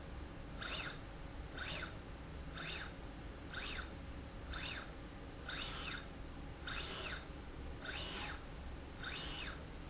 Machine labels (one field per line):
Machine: slide rail